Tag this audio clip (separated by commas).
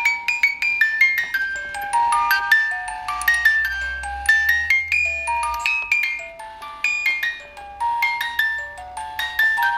Marimba, Mallet percussion, Glockenspiel